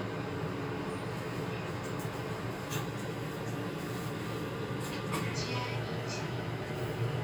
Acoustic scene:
elevator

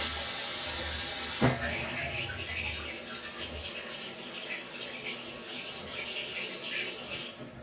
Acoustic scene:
restroom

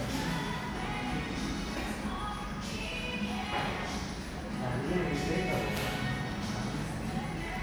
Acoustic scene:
cafe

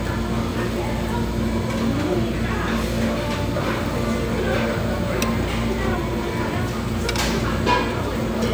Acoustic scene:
restaurant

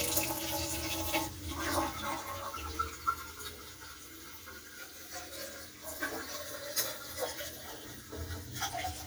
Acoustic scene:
kitchen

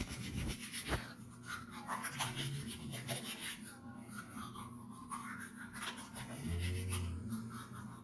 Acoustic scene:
restroom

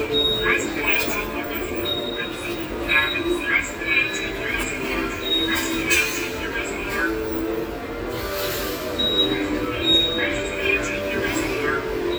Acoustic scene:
subway station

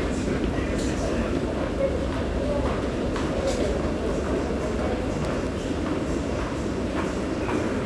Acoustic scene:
subway station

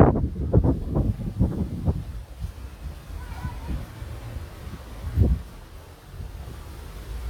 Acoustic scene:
residential area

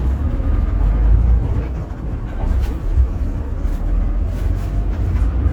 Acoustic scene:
bus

